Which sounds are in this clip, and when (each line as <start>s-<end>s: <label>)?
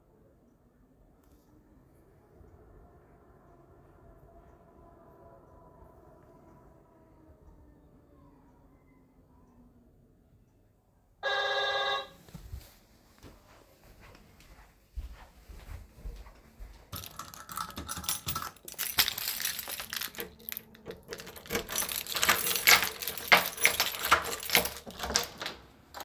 11.1s-12.3s: bell ringing
12.7s-17.0s: footsteps
17.0s-26.0s: keys
21.0s-26.0s: door